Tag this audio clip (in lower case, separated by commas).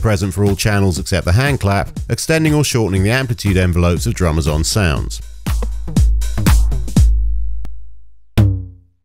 drum machine, musical instrument, music